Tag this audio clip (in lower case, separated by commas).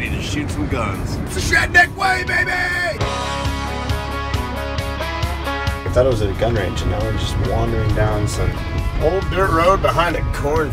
music, speech